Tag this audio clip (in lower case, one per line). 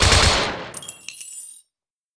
explosion
gunfire